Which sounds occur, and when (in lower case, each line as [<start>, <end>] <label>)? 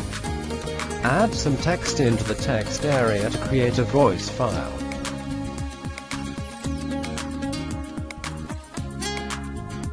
[0.00, 9.92] music
[0.99, 4.71] male speech